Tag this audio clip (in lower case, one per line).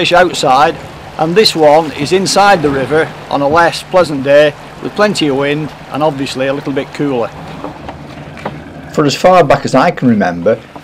boat
sailing ship